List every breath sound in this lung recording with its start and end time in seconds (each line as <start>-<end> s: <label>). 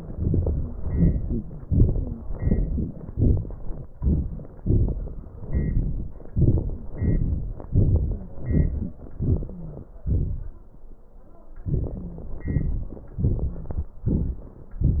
0.12-0.78 s: crackles
0.12-0.79 s: inhalation
0.79-1.63 s: crackles
0.81-1.65 s: exhalation
1.66-2.32 s: inhalation
1.95-2.23 s: wheeze
2.32-3.12 s: exhalation
2.32-3.12 s: crackles
3.13-3.94 s: inhalation
3.13-3.94 s: crackles
3.94-4.62 s: exhalation
4.61-5.36 s: inhalation
4.61-5.36 s: crackles
5.34-6.32 s: exhalation
5.36-6.32 s: crackles
6.34-6.92 s: crackles
6.35-6.94 s: inhalation
6.95-7.70 s: exhalation
6.95-7.70 s: crackles
7.71-8.23 s: inhalation
8.06-8.36 s: wheeze
8.23-9.12 s: exhalation
9.14-9.88 s: inhalation
9.53-9.88 s: wheeze
9.88-11.07 s: exhalation
11.63-12.36 s: inhalation
11.94-12.33 s: wheeze
12.36-13.09 s: exhalation
12.36-13.09 s: crackles
13.06-13.98 s: inhalation
13.46-13.85 s: wheeze
13.98-14.70 s: exhalation
13.98-14.70 s: crackles